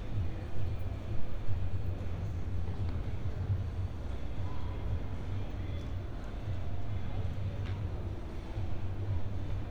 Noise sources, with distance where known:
music from an unclear source, far

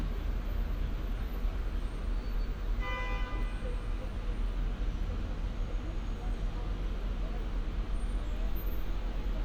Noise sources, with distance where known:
car horn, near

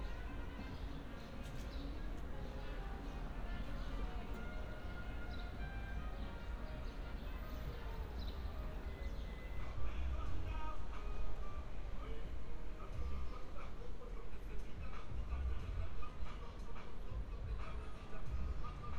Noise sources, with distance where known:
music from a fixed source

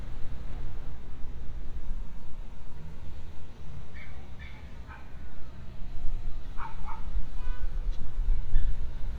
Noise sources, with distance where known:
dog barking or whining

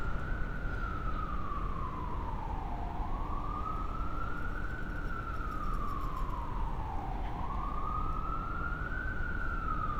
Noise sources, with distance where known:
siren, far

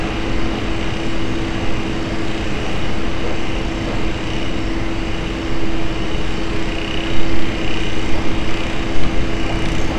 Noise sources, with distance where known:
engine of unclear size

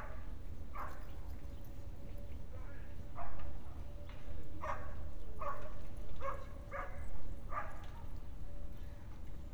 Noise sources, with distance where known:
dog barking or whining, far

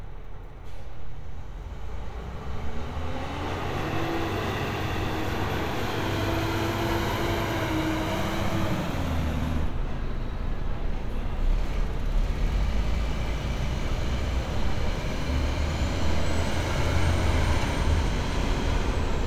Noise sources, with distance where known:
large-sounding engine, near

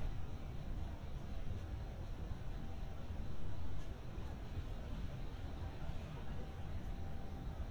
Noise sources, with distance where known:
person or small group talking, far

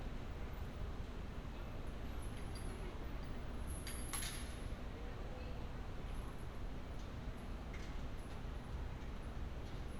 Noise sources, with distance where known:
background noise

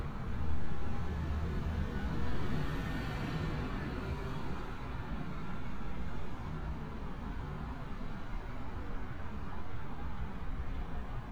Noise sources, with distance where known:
medium-sounding engine

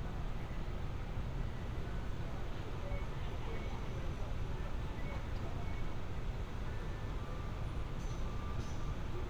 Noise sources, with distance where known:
music from an unclear source, far; unidentified human voice, far

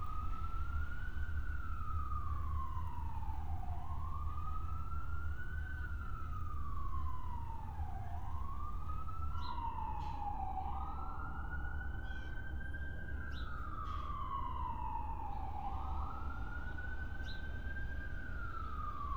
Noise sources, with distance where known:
siren, far

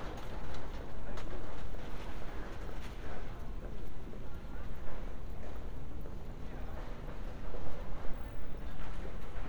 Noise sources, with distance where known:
car horn, near

